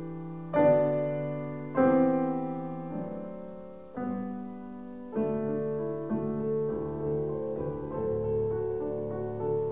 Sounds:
Music

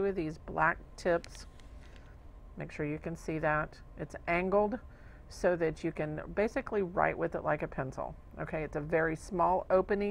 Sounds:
Speech

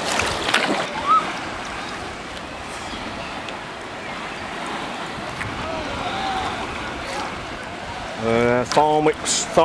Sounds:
Vehicle, Water vehicle, Speech

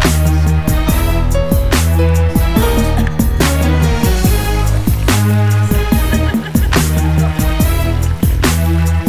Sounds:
Funk, Music

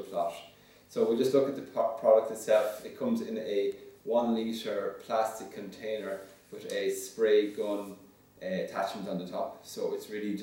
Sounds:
Speech

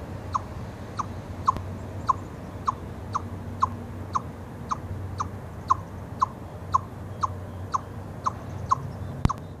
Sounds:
chipmunk chirping

